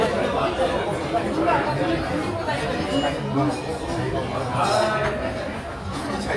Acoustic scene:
restaurant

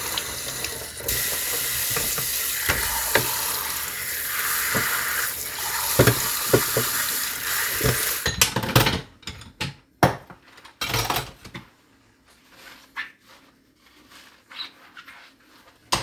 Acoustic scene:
kitchen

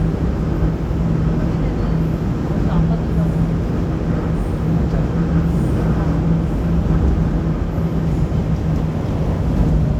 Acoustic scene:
subway train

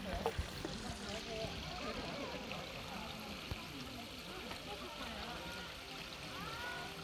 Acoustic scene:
park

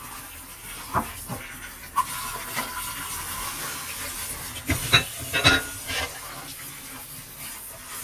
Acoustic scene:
kitchen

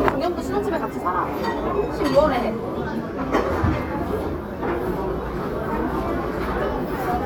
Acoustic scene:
restaurant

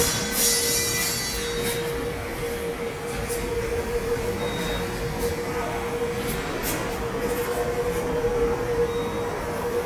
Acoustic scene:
subway station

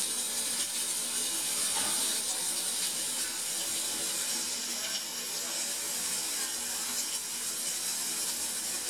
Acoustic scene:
restaurant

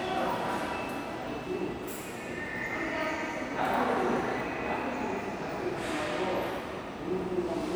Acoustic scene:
subway station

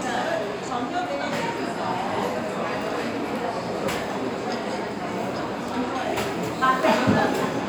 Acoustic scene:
restaurant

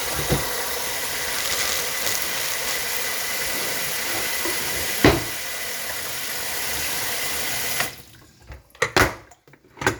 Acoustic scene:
kitchen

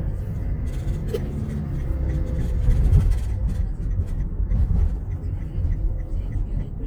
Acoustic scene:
car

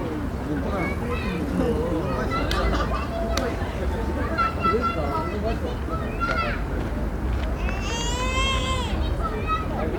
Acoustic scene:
residential area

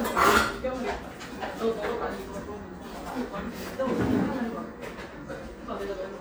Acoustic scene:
cafe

